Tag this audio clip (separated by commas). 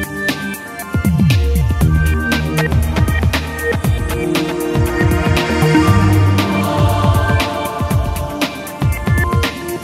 Music